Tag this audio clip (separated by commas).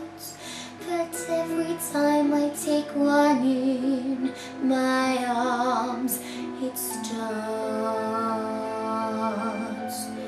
Music, Female singing